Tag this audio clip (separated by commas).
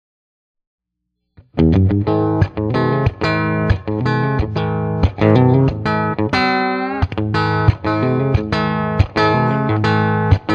Distortion, Electric guitar, Music, Guitar, Bass guitar